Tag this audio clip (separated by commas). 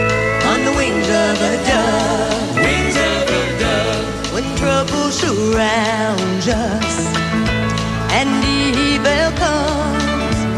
Music